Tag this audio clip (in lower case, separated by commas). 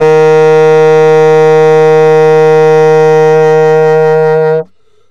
music, woodwind instrument, musical instrument